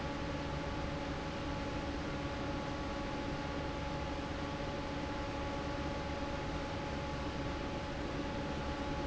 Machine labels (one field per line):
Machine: fan